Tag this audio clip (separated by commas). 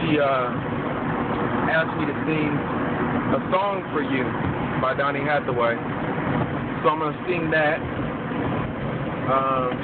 Speech